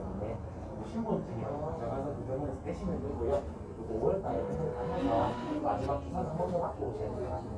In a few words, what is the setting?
crowded indoor space